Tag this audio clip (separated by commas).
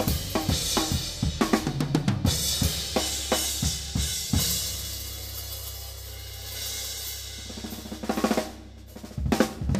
Music, Drum kit, Drum, Cymbal, Musical instrument